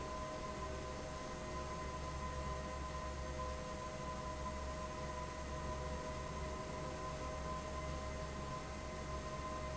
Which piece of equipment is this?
fan